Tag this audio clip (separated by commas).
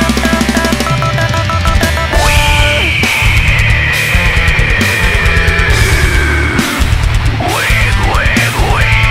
Music, Angry music